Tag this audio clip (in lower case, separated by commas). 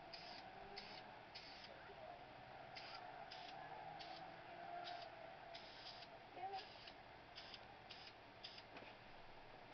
spray